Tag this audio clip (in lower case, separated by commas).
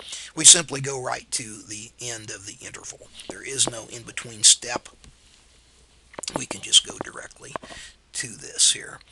whispering